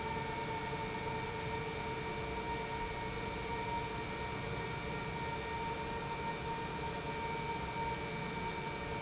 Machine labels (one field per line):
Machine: pump